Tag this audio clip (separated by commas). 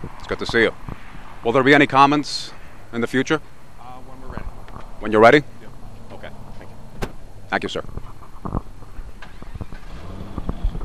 Speech, Car, Vehicle